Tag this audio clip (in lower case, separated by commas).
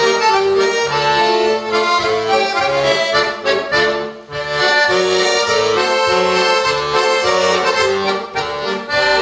accordion, music